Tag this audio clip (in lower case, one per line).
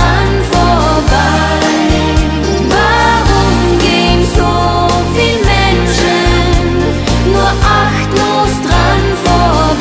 christian music
music